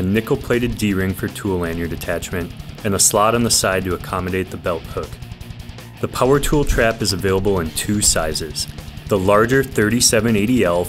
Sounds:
speech
music

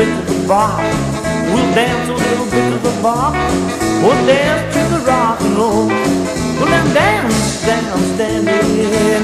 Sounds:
swing music
music

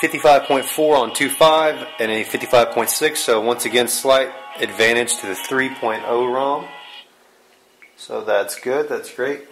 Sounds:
speech
music

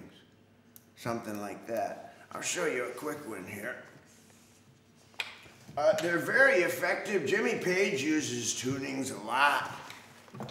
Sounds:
speech

